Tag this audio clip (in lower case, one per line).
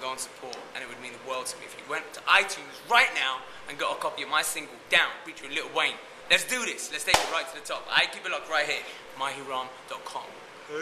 speech